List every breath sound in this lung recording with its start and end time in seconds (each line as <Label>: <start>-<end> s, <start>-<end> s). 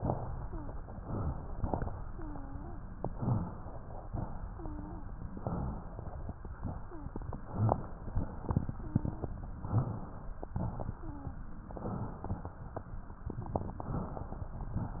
Inhalation: 1.04-1.99 s, 3.06-4.00 s, 5.29-6.24 s, 7.46-8.39 s, 9.64-10.46 s, 11.74-12.70 s
Wheeze: 0.36-0.76 s, 2.07-2.87 s, 4.48-5.08 s, 6.83-7.23 s, 8.75-9.33 s, 10.95-11.42 s
Rhonchi: 7.46-7.87 s